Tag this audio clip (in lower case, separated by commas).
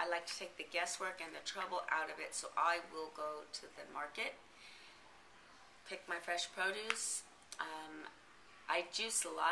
speech